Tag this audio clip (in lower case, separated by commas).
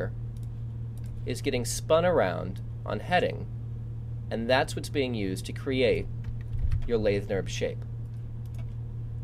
speech